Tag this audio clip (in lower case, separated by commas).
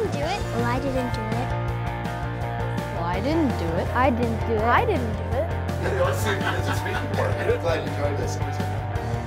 music, speech